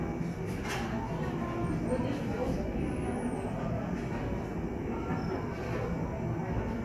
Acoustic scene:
cafe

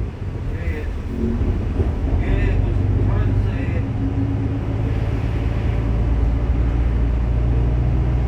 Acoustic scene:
bus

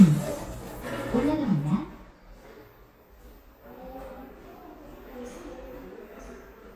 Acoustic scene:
elevator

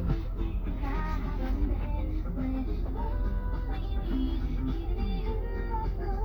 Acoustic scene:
car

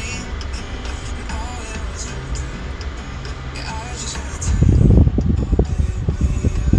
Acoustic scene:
car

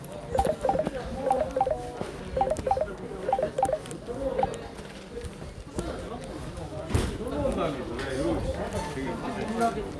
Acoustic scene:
crowded indoor space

